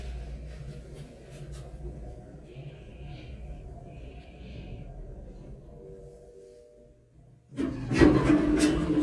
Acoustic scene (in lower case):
elevator